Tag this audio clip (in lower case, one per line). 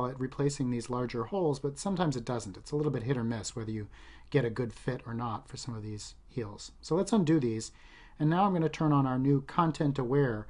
speech